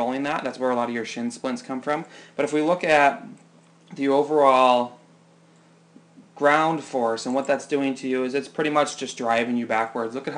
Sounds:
speech

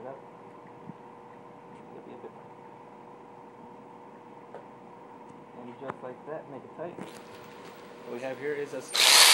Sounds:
speech

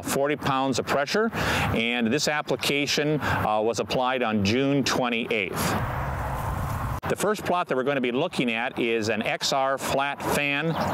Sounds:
spray, speech

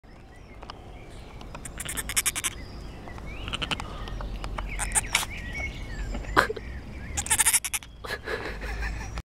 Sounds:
goat, animal

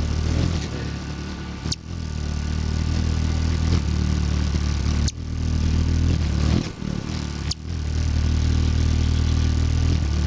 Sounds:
bird wings flapping

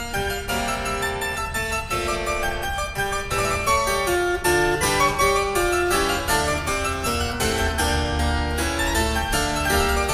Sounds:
keyboard (musical), harpsichord

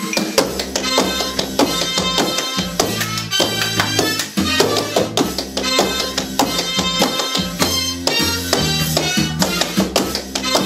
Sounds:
tap, music

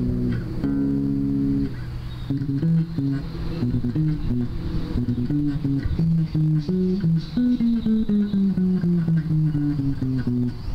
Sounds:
music, electric guitar, musical instrument, plucked string instrument

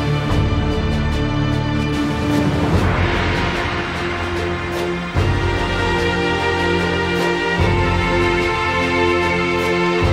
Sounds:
theme music

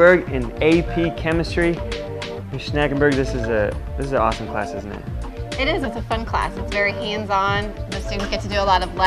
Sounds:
speech, music

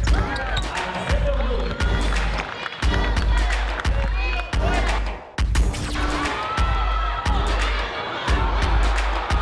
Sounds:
music, speech

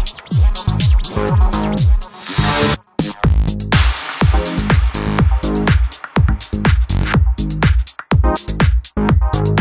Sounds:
sound effect, music

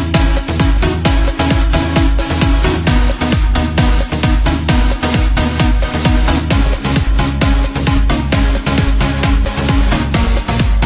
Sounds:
music, electronica

